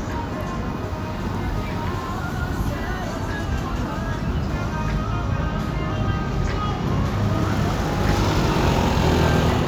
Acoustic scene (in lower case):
street